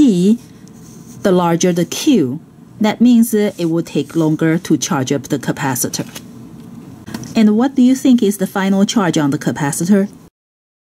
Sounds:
inside a small room, Speech

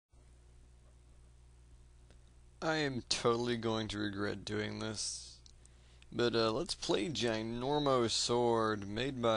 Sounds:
Speech

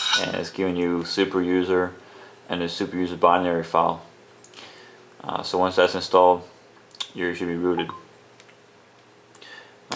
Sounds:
Speech

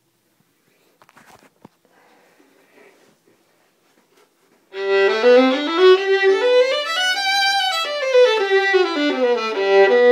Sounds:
fiddle, Musical instrument, Music

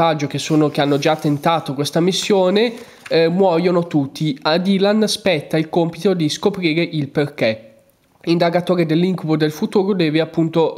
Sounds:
Speech

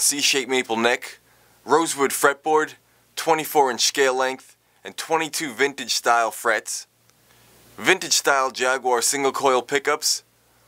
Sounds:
Speech

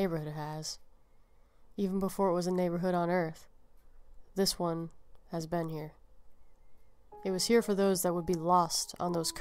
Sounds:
Music

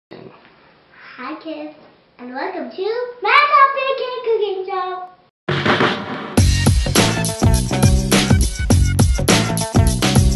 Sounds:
Speech, Child speech, Music

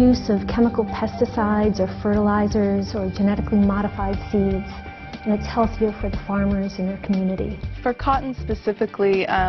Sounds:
Female speech

